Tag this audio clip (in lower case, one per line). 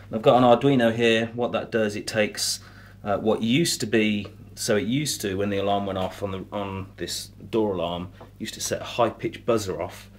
speech